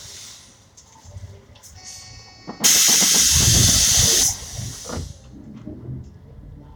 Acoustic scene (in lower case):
bus